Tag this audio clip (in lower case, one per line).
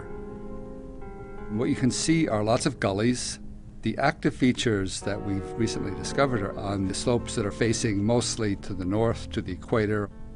music
speech